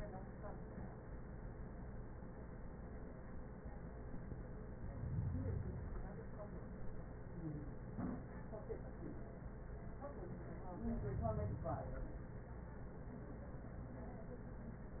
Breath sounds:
Inhalation: 4.65-6.15 s, 10.70-12.20 s

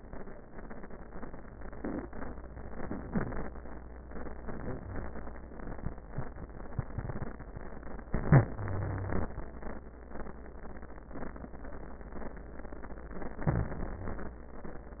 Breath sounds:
Inhalation: 8.10-8.54 s, 13.38-13.76 s
Exhalation: 8.51-9.33 s, 13.74-14.44 s
Wheeze: 8.51-9.33 s, 13.38-13.76 s

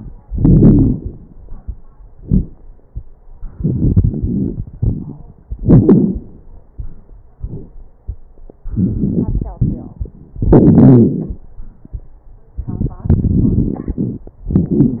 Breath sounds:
Inhalation: 3.54-5.20 s, 8.63-10.11 s, 12.62-14.31 s
Exhalation: 0.26-1.24 s, 5.60-6.27 s, 10.43-11.42 s, 14.50-15.00 s
Wheeze: 10.43-11.42 s
Crackles: 0.26-1.24 s, 3.54-5.20 s, 5.60-6.27 s, 8.63-10.11 s, 12.62-14.31 s, 14.50-15.00 s

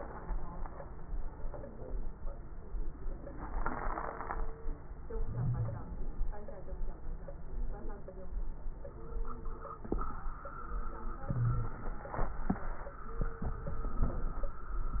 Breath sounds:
Inhalation: 5.05-5.92 s, 11.30-12.01 s, 14.01-14.67 s
Wheeze: 5.25-5.92 s, 11.30-11.76 s

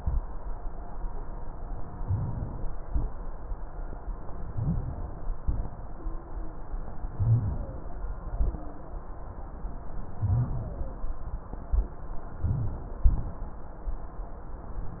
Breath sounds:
Inhalation: 2.05-2.83 s, 4.31-5.09 s, 7.15-7.84 s, 10.13-10.89 s, 12.41-13.05 s
Exhalation: 2.87-3.49 s, 5.39-6.02 s, 8.27-8.69 s, 13.05-13.57 s
Wheeze: 6.03-6.66 s, 8.37-9.64 s
Rhonchi: 1.99-2.45 s, 2.88-3.27 s, 4.31-5.09 s, 5.43-5.77 s, 7.15-7.84 s, 10.13-10.89 s, 12.43-12.94 s, 13.05-13.57 s

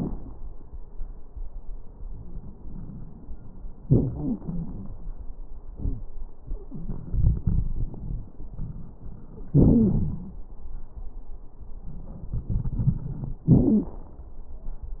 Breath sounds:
Inhalation: 2.00-3.65 s, 6.78-9.33 s, 11.85-13.47 s
Exhalation: 3.85-4.99 s, 9.54-10.46 s, 13.47-14.13 s
Wheeze: 13.48-14.00 s
Crackles: 2.00-3.65 s, 3.85-4.99 s, 6.78-9.33 s, 9.54-10.46 s, 11.85-13.47 s

